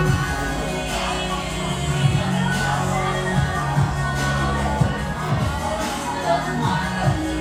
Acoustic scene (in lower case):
cafe